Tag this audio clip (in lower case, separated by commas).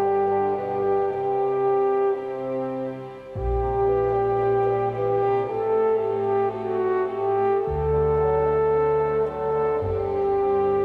brass instrument